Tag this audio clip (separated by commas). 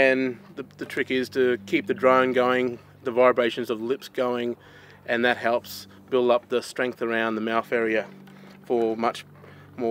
Speech